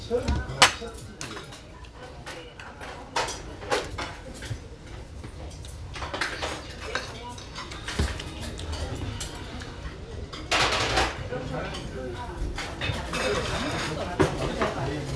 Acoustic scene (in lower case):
restaurant